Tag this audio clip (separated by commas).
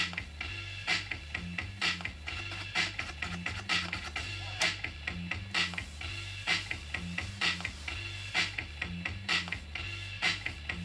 Music, Scratching (performance technique)